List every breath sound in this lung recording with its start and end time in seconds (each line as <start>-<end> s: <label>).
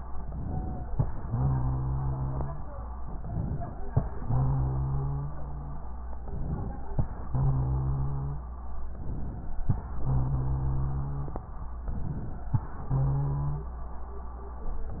0.22-0.93 s: inhalation
0.44-0.84 s: wheeze
1.22-2.61 s: exhalation
1.26-2.65 s: wheeze
3.12-3.83 s: inhalation
4.17-5.81 s: exhalation
4.17-5.81 s: wheeze
6.27-6.99 s: inhalation
7.32-8.59 s: exhalation
7.32-8.62 s: wheeze
8.92-9.63 s: inhalation
9.98-11.48 s: exhalation
9.99-11.46 s: wheeze
11.84-12.55 s: inhalation
12.85-13.75 s: wheeze